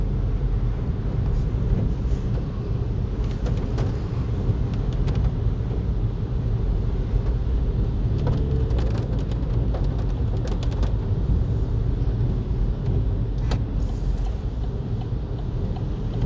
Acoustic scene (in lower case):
car